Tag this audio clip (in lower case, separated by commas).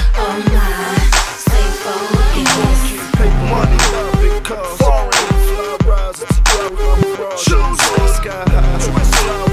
rapping